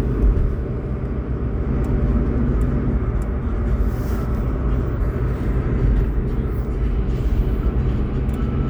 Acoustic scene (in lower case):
car